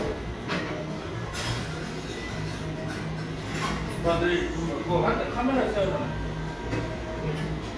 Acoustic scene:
cafe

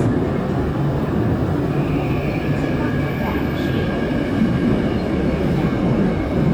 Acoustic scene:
subway train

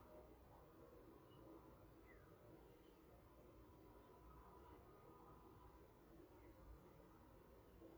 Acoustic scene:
park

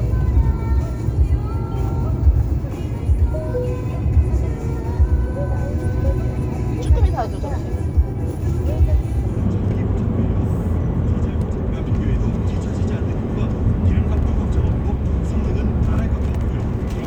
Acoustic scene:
car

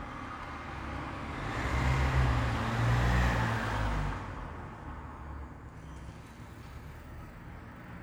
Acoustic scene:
street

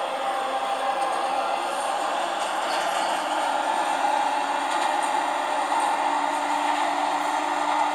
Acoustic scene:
subway train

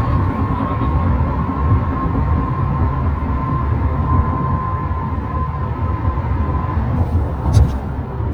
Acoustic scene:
car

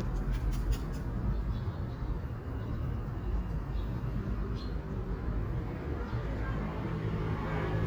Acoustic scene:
park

